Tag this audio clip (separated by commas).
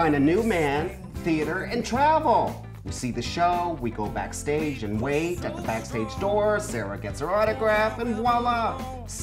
Music, Speech